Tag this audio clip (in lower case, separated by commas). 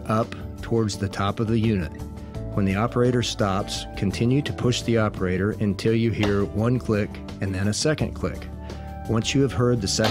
music, speech